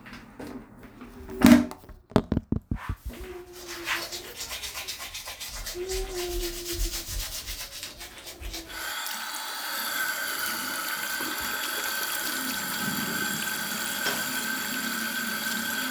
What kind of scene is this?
restroom